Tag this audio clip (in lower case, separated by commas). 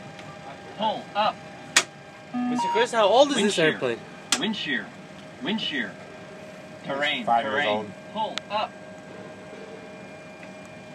speech, vehicle